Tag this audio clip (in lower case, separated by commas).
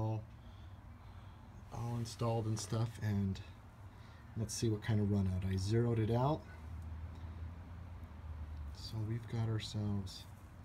speech